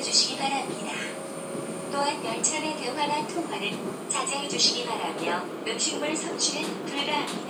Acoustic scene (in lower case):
subway train